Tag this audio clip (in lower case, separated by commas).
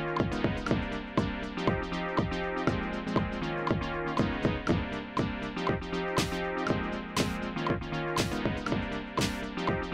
electronica, music, electronic music